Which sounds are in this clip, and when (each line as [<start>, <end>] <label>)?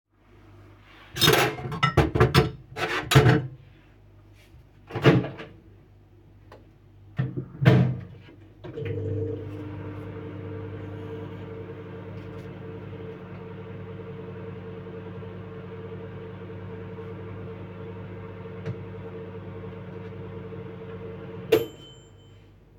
[1.11, 3.63] cutlery and dishes
[8.62, 21.91] microwave